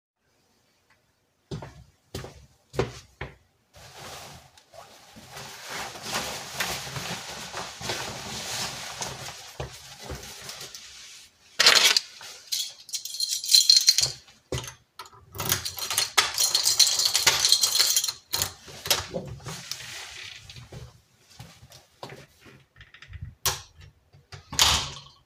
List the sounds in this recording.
footsteps, keys, door